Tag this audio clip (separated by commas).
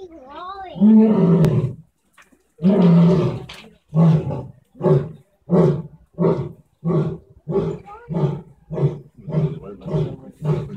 lions roaring